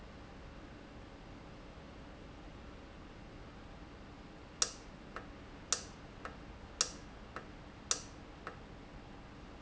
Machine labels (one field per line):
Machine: valve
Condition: normal